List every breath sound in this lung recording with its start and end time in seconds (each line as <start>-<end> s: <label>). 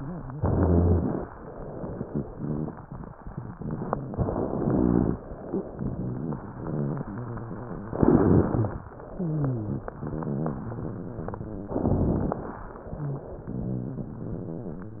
0.32-1.25 s: inhalation
0.32-1.25 s: rhonchi
2.05-2.79 s: rhonchi
4.31-5.24 s: inhalation
4.31-5.24 s: rhonchi
5.77-7.86 s: rhonchi
7.86-8.79 s: inhalation
7.86-8.79 s: crackles
9.09-11.75 s: rhonchi
11.74-12.68 s: inhalation
11.74-12.68 s: crackles
12.96-15.00 s: rhonchi